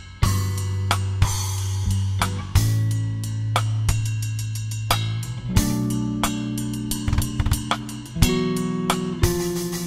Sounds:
Drum kit, Drum, Rimshot, Snare drum, Percussion, Bass drum

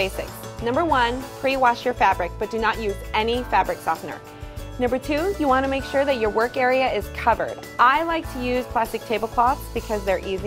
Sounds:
Music, Speech

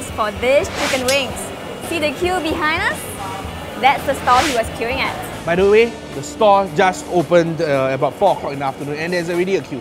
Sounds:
Music, Speech

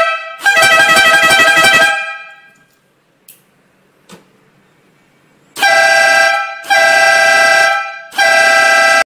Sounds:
car horn

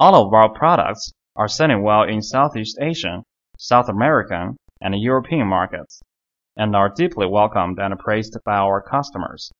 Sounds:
Speech

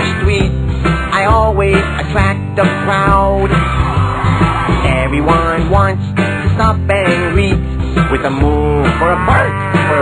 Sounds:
Music

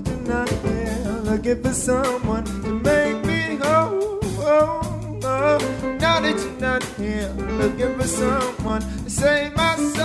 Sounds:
Ska, Music

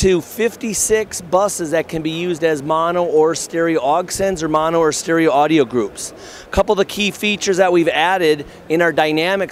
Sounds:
Speech

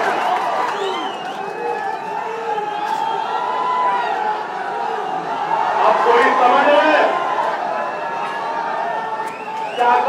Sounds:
Speech, Narration, man speaking

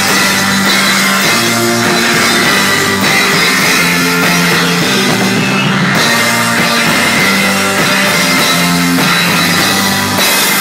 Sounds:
Guitar, Music, Musical instrument

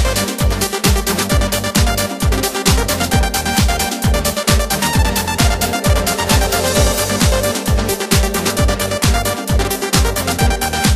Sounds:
Music

